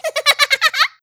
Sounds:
laughter
human voice

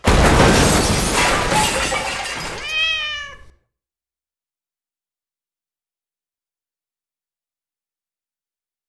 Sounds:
cat
domestic animals
animal

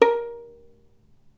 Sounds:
musical instrument
bowed string instrument
music

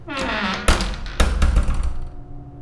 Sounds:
squeak

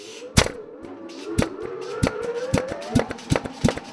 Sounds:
tools

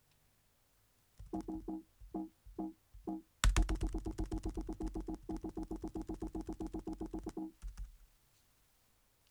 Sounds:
computer keyboard
typing
home sounds

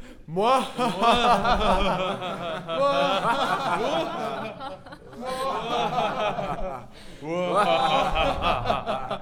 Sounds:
laughter
human voice

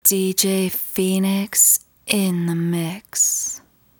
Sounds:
human voice
speech
female speech

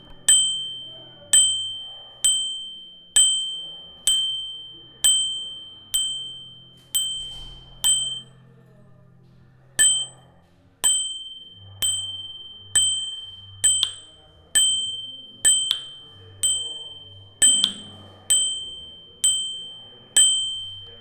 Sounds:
vehicle
bicycle
bell
bicycle bell
alarm

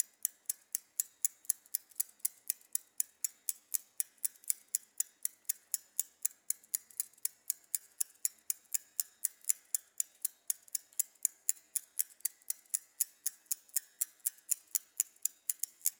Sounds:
vehicle
bicycle

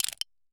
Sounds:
crushing

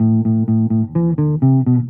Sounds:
music
plucked string instrument
guitar
musical instrument
bass guitar

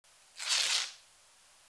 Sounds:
tearing

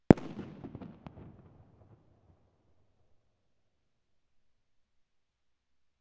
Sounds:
fireworks
explosion

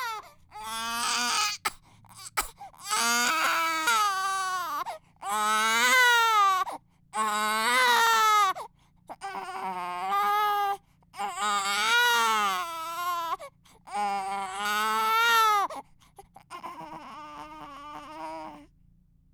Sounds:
sobbing
human voice

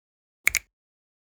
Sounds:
hands
finger snapping

